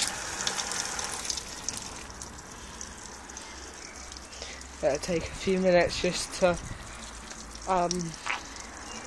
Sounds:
Speech, outside, urban or man-made

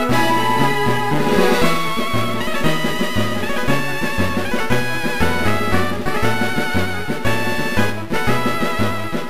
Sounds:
Music, Jazz

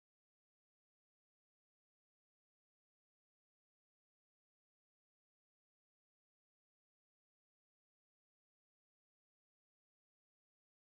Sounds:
swimming

